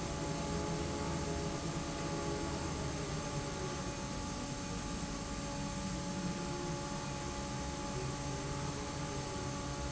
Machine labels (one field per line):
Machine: fan